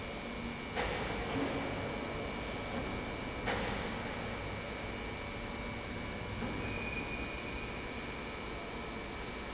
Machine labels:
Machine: pump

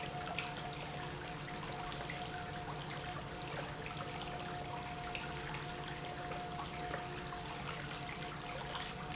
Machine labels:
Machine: pump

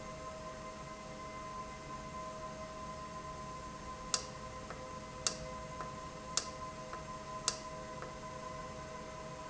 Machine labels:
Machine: valve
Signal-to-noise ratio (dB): 0 dB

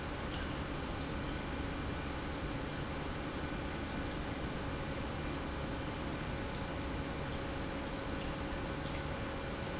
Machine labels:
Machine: pump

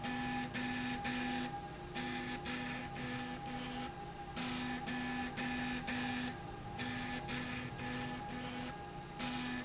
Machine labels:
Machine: slide rail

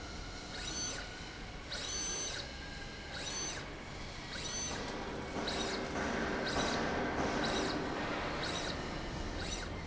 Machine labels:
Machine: slide rail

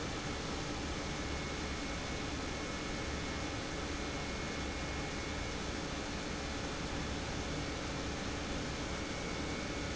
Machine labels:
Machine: pump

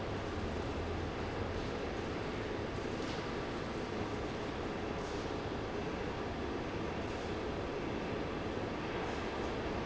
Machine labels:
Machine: fan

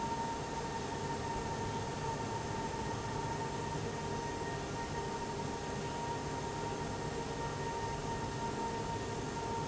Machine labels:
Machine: fan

